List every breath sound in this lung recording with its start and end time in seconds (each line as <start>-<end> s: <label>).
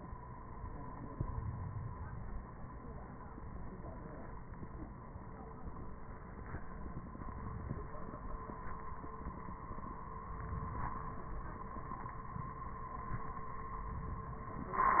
1.01-2.47 s: inhalation